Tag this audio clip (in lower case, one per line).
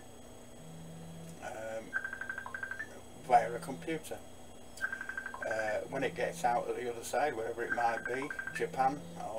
speech